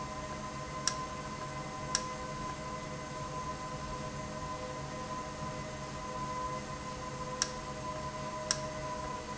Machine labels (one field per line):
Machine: valve